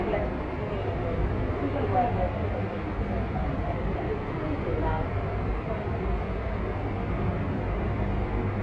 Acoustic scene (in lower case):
subway train